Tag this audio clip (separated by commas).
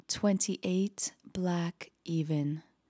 Human voice, woman speaking, Speech